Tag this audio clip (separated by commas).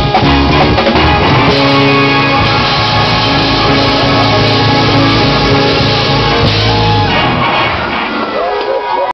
Music, Whoop